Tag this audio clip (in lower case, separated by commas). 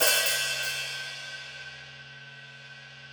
percussion, cymbal, music, hi-hat, musical instrument